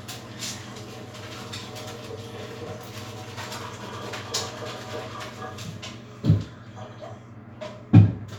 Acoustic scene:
restroom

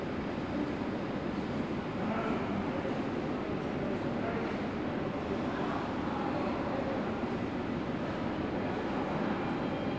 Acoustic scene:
subway station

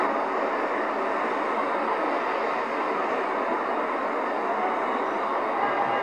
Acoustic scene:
street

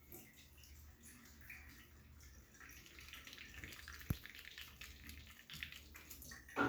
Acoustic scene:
restroom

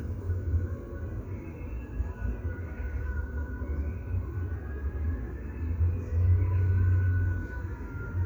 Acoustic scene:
park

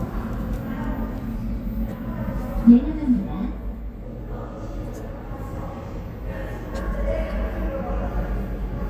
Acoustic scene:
elevator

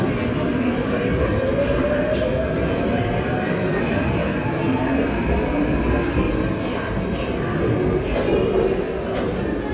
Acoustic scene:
subway station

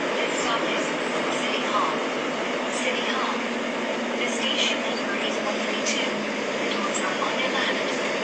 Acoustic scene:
subway train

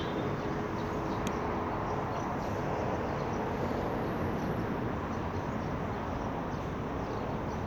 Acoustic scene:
street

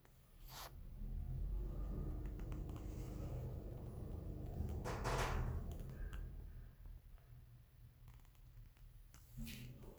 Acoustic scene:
elevator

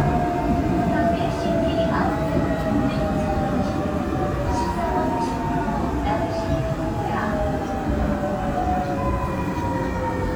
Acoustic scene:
subway train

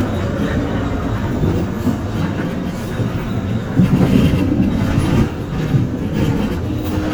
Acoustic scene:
bus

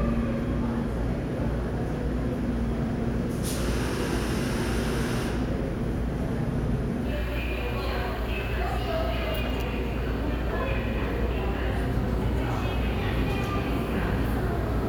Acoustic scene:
subway station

